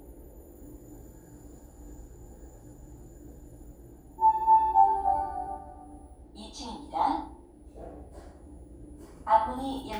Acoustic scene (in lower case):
elevator